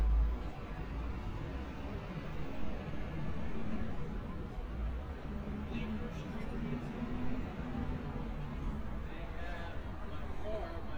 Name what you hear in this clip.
person or small group talking